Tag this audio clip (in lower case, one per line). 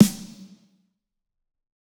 music
percussion
snare drum
drum
musical instrument